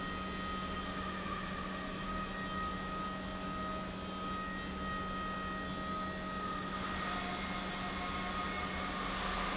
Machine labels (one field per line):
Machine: pump